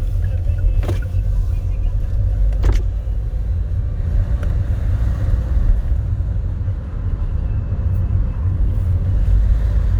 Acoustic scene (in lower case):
car